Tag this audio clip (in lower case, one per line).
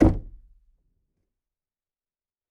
home sounds
door
knock